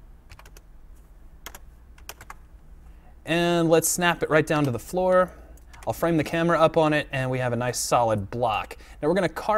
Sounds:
Speech

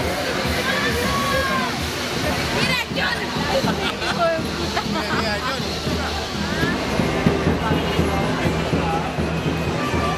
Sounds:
people marching

